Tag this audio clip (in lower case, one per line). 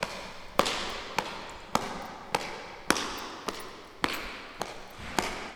home sounds
door
slam
walk